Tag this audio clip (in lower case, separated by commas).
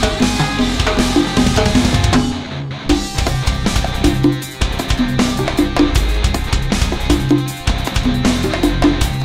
percussion, drum